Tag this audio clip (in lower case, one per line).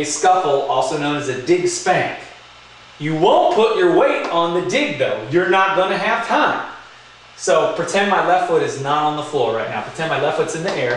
speech